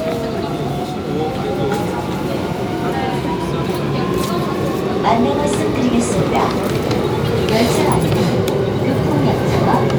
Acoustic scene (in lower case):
subway train